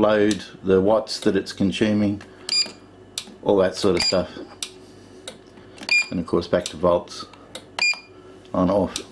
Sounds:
Speech

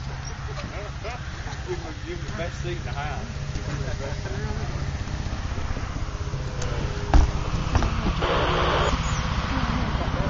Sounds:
Vehicle, Helicopter, Speech

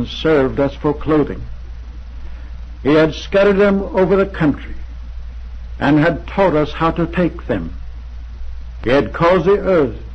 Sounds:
Narration, Speech, Male speech

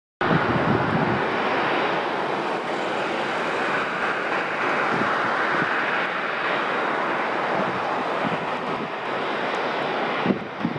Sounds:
Vehicle, Aircraft engine, Aircraft

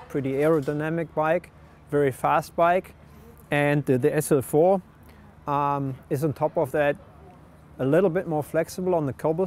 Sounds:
Speech

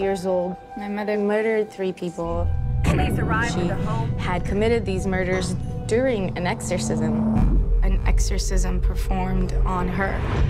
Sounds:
Speech, Music

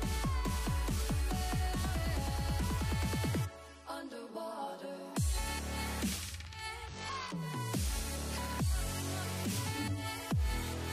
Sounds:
Music

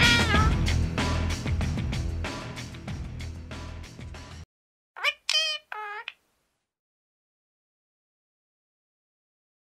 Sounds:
Music

